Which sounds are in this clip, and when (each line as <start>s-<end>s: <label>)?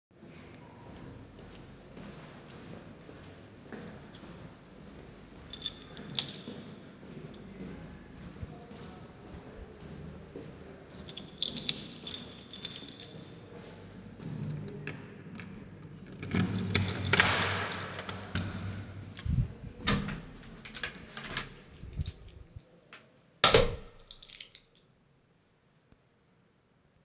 0.1s-14.0s: footsteps
5.4s-6.7s: keys
10.9s-13.2s: keys
14.3s-14.8s: keys
14.8s-22.2s: door
23.3s-23.9s: door
23.9s-24.7s: keys